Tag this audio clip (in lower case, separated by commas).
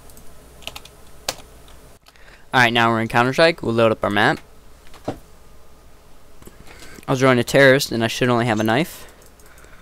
speech, typing